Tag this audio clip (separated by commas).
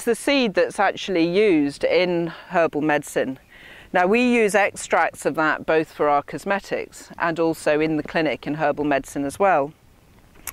Speech